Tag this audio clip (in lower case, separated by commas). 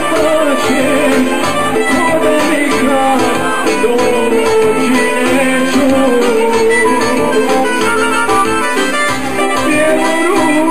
harmonica, singing